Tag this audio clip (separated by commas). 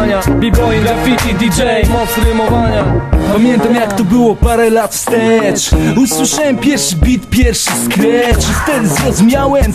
Funk, Music, Hip hop music, Rapping